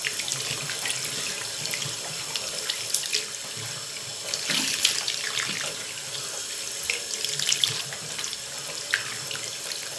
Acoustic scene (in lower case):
restroom